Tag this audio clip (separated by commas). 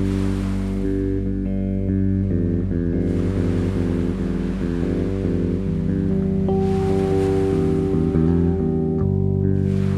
Music